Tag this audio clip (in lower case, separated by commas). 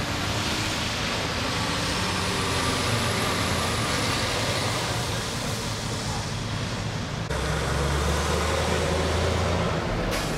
motor vehicle (road), truck, vehicle